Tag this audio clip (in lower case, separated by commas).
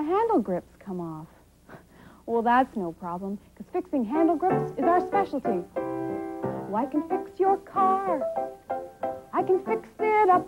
speech, music